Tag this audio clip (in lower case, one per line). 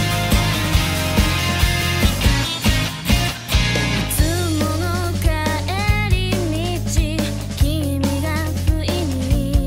music
music for children